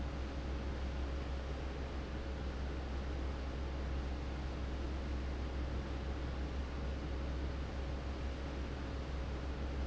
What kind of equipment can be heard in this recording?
fan